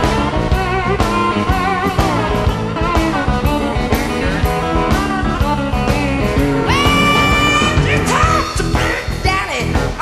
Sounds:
music

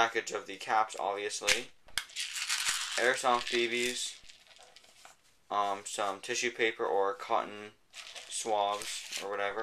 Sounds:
speech

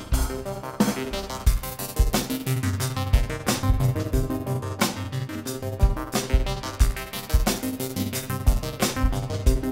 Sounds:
music

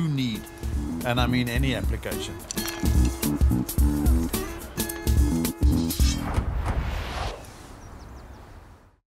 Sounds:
speech, music

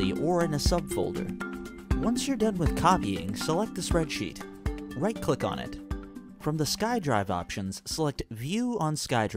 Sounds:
narration

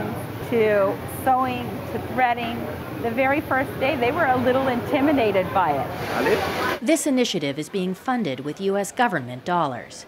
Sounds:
speech

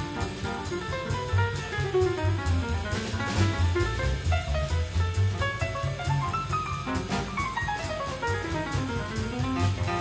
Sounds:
jazz, musical instrument, music, vibraphone, classical music, orchestra

